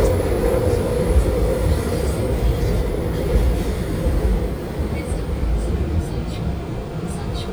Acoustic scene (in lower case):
subway train